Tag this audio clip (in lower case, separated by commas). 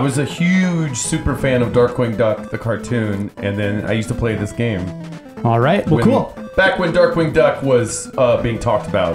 speech, music